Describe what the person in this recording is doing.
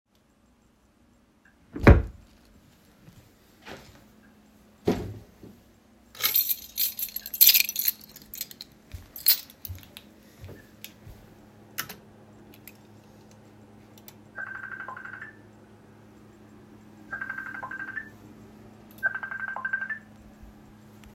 I checked the wardrobe and grabbed my keys. My phone then started to ring.